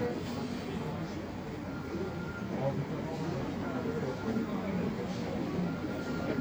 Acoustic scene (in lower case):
subway station